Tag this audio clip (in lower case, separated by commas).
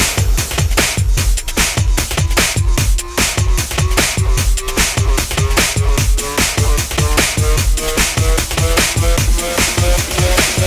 electronic music, music